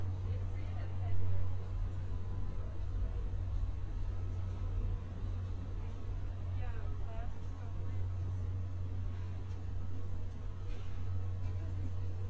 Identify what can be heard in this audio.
person or small group talking